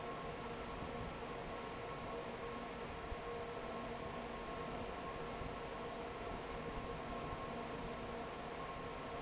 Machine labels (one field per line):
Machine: fan